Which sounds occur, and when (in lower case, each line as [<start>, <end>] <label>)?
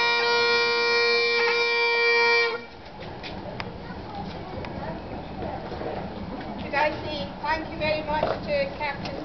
[0.01, 9.24] background noise
[0.01, 9.24] music
[6.64, 8.98] female speech
[9.21, 9.24] female speech